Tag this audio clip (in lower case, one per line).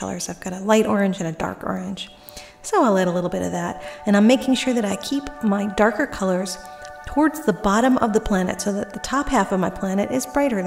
music
speech